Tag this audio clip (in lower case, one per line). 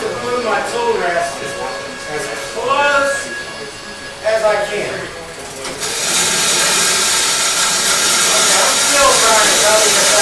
speech